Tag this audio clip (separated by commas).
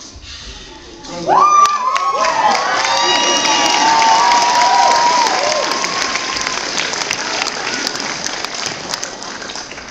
Cheering, Crowd